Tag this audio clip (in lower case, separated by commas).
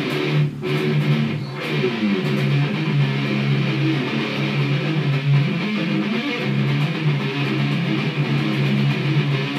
music